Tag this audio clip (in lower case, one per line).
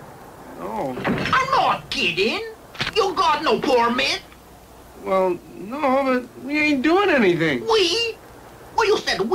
speech